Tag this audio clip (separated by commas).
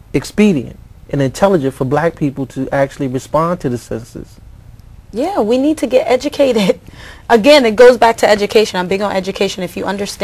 Speech